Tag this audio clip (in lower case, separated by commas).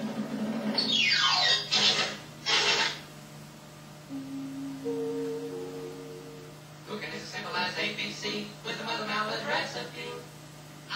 television, music